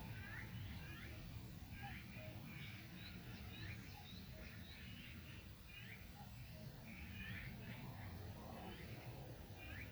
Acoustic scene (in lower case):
park